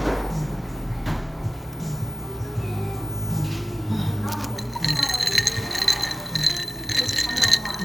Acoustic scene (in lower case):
cafe